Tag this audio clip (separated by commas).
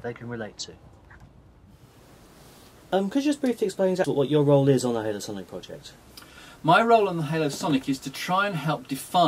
Speech